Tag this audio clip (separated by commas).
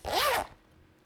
home sounds, Zipper (clothing)